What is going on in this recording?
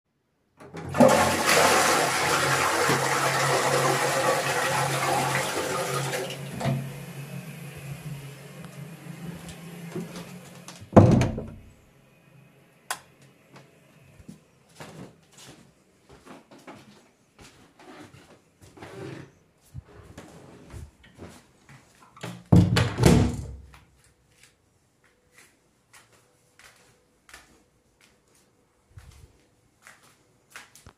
I flushed the toilet, opened the door and came out of it. I then closed it, turned off the light, and walked towards the living room.